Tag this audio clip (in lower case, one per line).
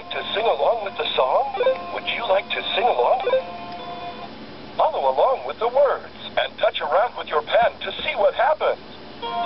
speech
radio
music